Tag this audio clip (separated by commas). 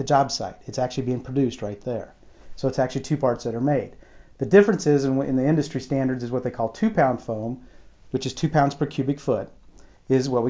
Speech